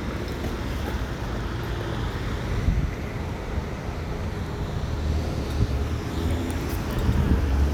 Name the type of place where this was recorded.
residential area